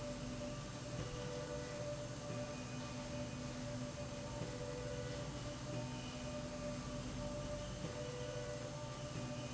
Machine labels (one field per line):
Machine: slide rail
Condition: normal